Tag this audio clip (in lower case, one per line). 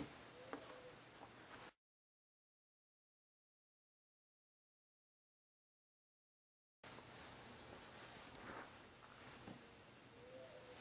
silence
inside a small room